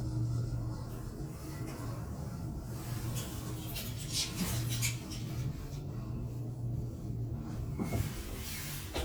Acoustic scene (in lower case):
elevator